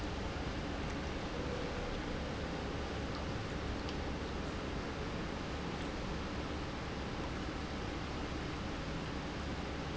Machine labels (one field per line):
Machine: pump